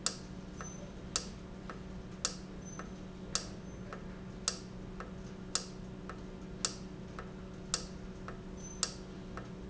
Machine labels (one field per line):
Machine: valve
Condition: normal